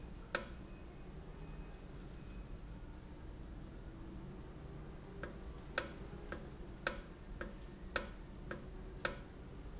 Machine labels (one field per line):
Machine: valve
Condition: normal